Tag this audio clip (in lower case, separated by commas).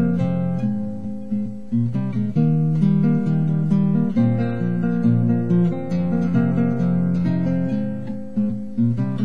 plucked string instrument, music, musical instrument, guitar